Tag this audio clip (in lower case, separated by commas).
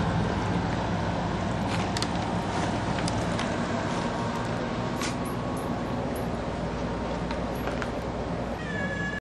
animal, meow, pets, cat